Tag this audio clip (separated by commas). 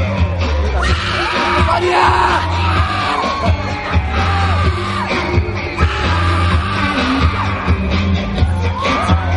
Music